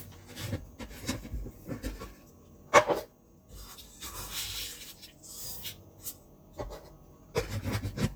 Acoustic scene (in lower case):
kitchen